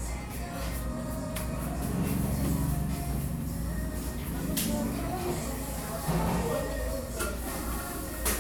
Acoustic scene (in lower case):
cafe